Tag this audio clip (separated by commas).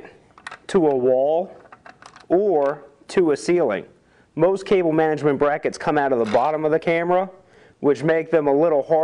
Speech